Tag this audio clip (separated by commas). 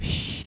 Breathing, Respiratory sounds